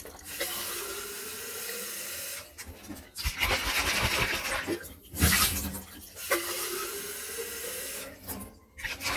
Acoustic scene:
kitchen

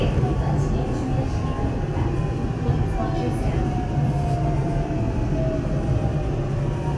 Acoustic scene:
subway train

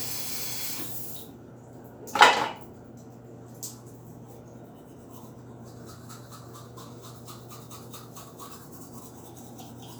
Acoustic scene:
restroom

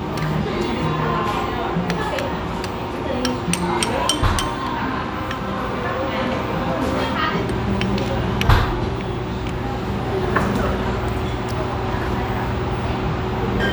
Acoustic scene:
restaurant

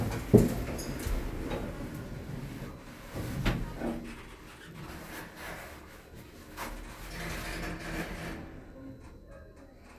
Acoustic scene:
elevator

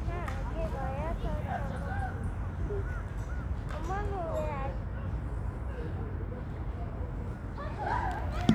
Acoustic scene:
residential area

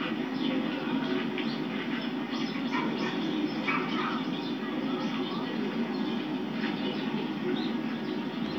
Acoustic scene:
park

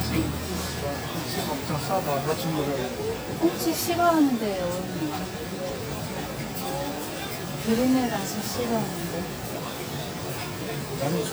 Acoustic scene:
crowded indoor space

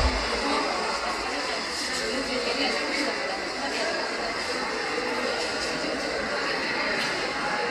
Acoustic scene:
subway station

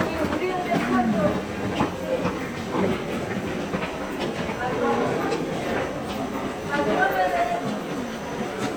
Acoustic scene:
subway station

